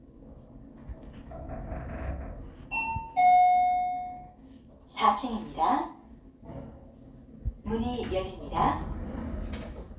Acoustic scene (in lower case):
elevator